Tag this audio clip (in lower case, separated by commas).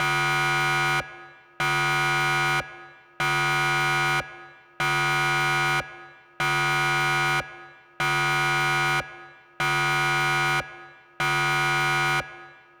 siren, alarm